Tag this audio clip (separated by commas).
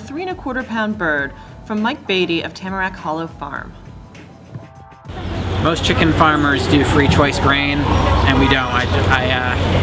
Speech